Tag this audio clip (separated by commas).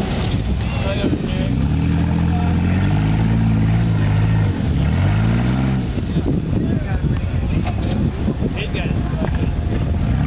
Accelerating, Vehicle, Car